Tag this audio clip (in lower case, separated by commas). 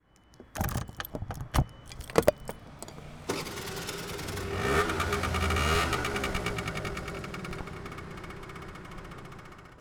vehicle